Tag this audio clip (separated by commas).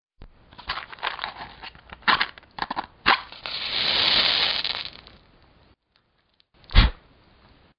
Fire